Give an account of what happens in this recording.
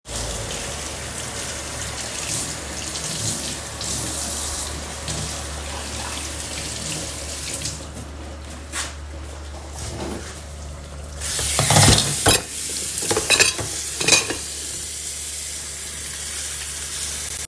I started the coffee machine and arranged cups and cutlery on the counter, creating light clinks and stacking sounds. The recorder stayed in place, capturing both the machine's pump noise and dish sounds.